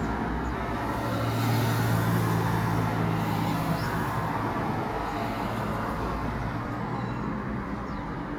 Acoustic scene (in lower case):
residential area